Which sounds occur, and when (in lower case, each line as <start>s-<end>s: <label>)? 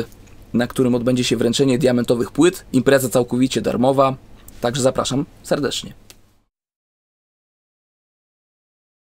0.0s-6.4s: mechanisms
0.1s-0.3s: clicking
0.5s-2.6s: man speaking
2.7s-4.1s: man speaking
4.3s-4.4s: generic impact sounds
4.4s-4.5s: clicking
4.5s-5.3s: man speaking
5.4s-5.9s: man speaking
6.0s-6.2s: clapping